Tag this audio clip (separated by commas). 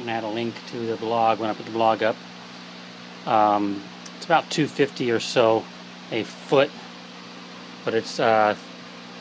Speech, inside a small room